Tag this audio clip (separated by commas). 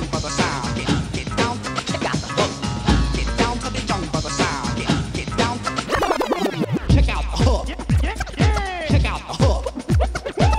Music, Electronic music